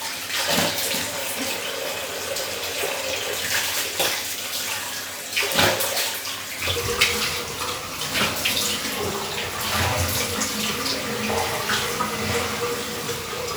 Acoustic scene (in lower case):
restroom